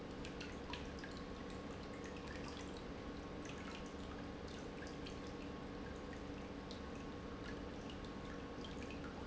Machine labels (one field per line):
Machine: pump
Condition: normal